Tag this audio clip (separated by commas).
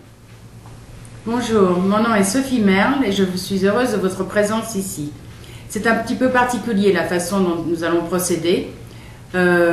Speech